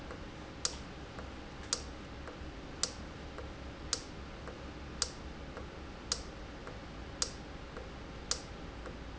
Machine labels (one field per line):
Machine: valve